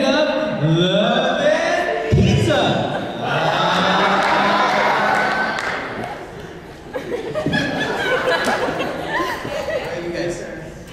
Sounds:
speech

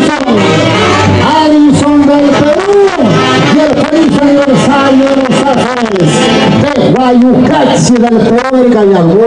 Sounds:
speech, music

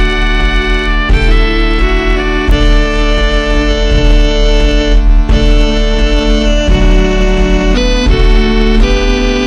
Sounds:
fiddle, musical instrument, music

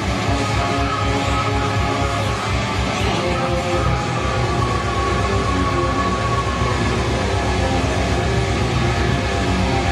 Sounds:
plucked string instrument, strum, music, electric guitar, musical instrument

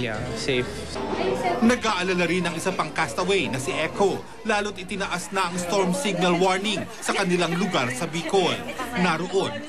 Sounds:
speech

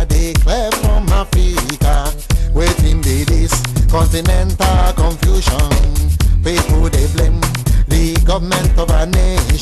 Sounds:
music, afrobeat

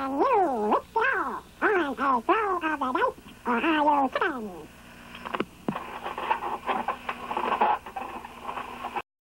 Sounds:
speech

